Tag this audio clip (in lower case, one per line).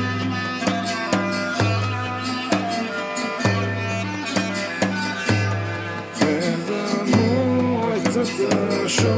music